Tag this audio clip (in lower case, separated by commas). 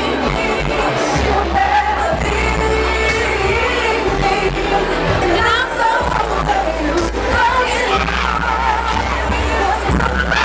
crowd